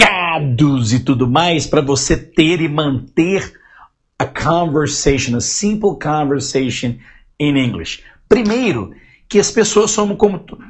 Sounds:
speech

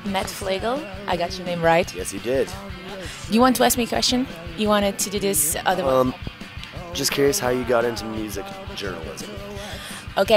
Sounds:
speech
music

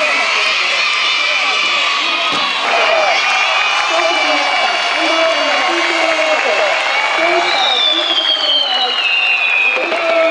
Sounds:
speech

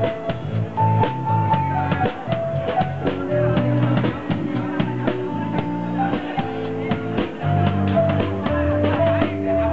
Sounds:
tender music
music

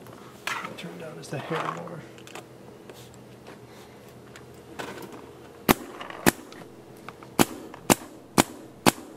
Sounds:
cap gun
gunshot

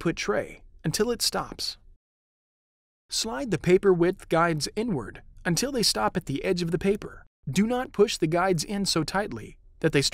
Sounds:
speech

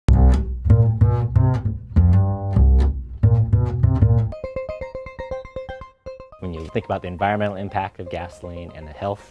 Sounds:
speech
music

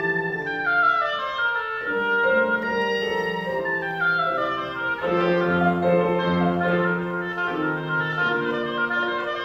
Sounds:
playing oboe

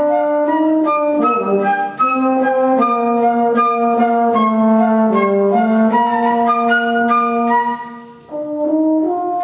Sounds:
music

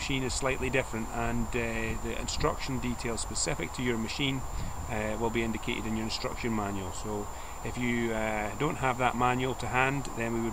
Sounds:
speech

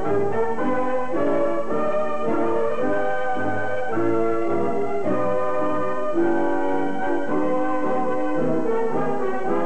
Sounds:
music

